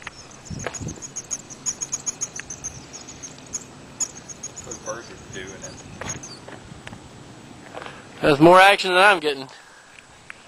Birds are calling and chirping, and two adult males are speaking